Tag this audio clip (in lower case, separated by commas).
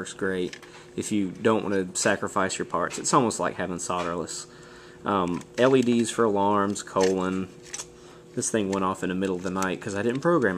speech